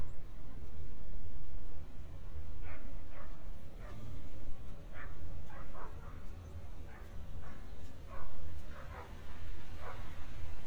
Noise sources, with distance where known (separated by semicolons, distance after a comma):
dog barking or whining, far